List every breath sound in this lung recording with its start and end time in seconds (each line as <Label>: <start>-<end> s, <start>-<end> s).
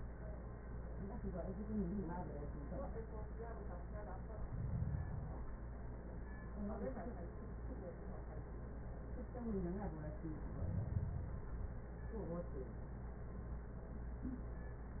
Inhalation: 4.18-5.68 s, 10.37-11.87 s